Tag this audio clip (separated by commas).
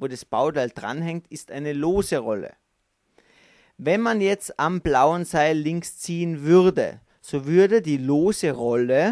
Speech